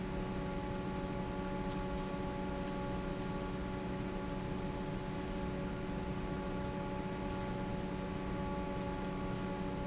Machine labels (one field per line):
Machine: fan